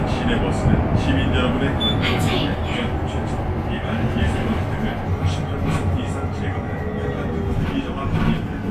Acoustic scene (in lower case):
bus